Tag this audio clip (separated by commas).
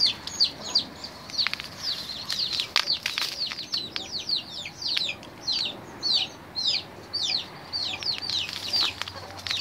rooster, Bird